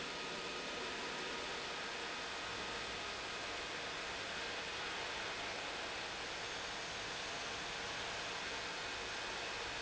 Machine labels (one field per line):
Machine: pump